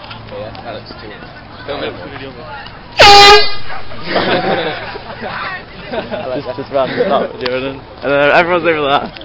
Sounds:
outside, urban or man-made, Speech, truck horn

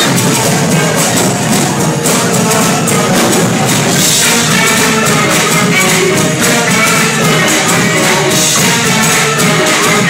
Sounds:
Tambourine, Music

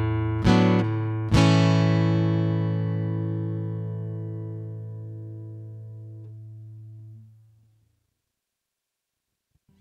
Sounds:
Acoustic guitar, Plucked string instrument, Guitar, Music

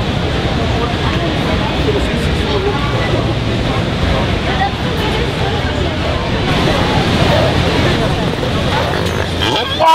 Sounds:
Speech

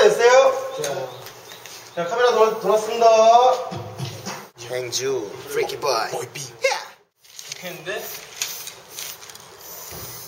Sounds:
Music, Speech

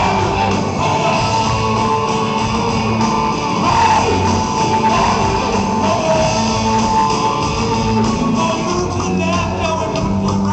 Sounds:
Music

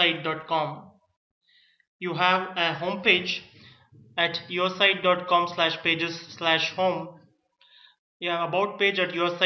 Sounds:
Speech

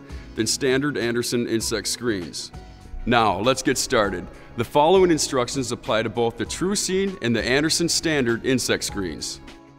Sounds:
Speech, Music

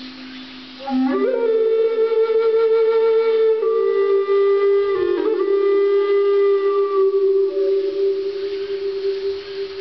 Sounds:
Flute, Echo, Music

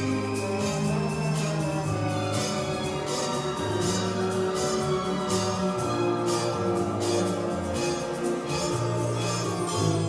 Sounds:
Orchestra

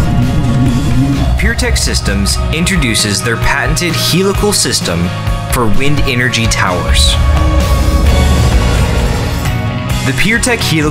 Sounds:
Speech, Music

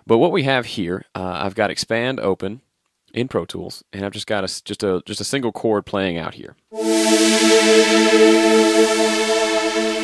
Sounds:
Music, Speech

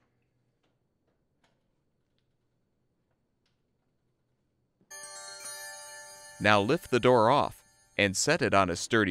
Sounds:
Speech

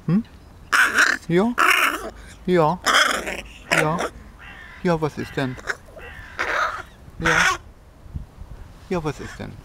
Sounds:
crow cawing

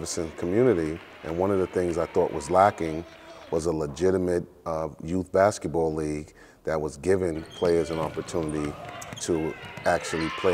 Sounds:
Basketball bounce, Speech

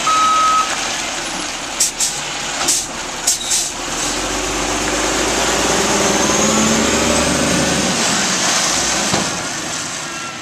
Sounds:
Truck, Motor vehicle (road), Vehicle

